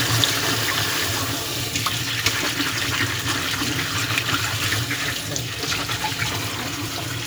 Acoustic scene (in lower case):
kitchen